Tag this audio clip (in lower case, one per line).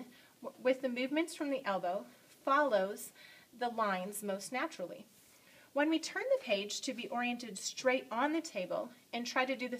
speech